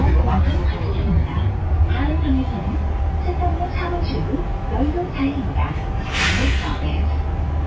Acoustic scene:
bus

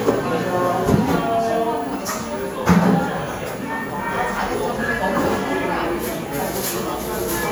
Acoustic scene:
cafe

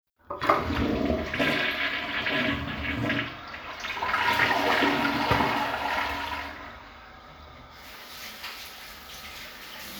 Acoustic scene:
restroom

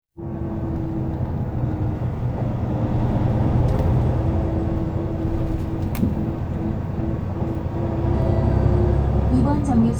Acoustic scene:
bus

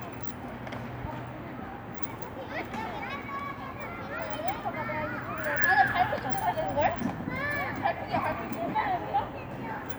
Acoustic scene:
residential area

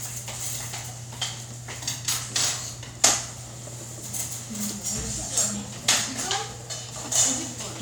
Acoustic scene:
restaurant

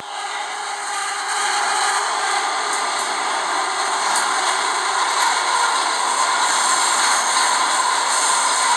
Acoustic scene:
subway train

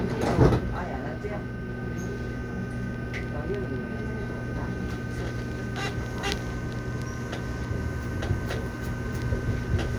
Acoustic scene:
subway train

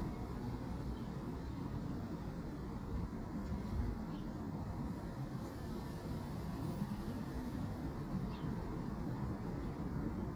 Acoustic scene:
residential area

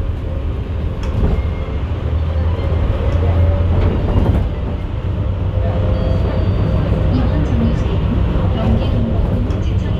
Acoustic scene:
bus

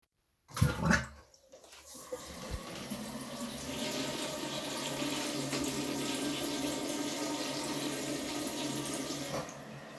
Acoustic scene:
restroom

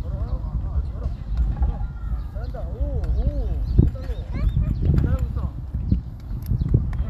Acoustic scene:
park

